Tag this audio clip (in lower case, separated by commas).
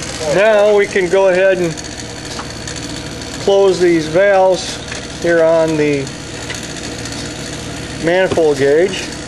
speech